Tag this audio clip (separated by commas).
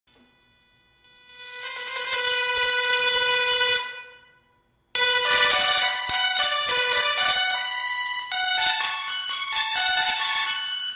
inside a small room, Piano, Musical instrument, Music